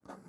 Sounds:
home sounds, writing

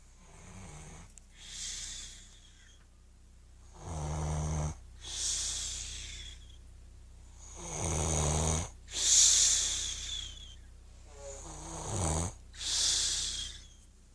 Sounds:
respiratory sounds, breathing

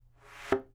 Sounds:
thud

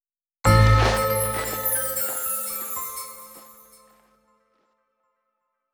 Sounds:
bell

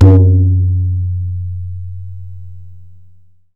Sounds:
drum, musical instrument, percussion, music, tabla

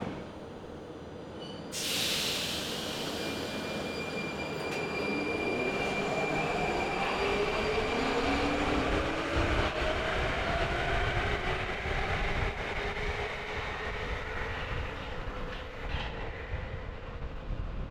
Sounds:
vehicle, rail transport, subway

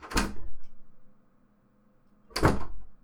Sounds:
slam, home sounds, door

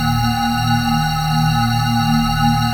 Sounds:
musical instrument, keyboard (musical), music, organ

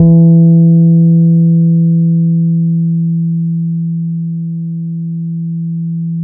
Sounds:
bass guitar, musical instrument, guitar, plucked string instrument, music

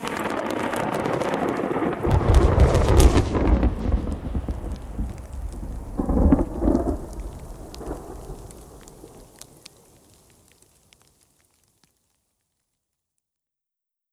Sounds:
water, rain, thunderstorm, thunder

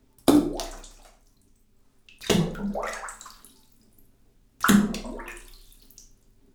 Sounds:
liquid, splatter

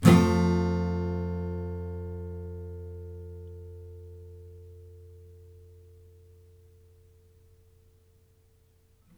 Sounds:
guitar, acoustic guitar, music, musical instrument, plucked string instrument, strum

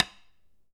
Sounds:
tap

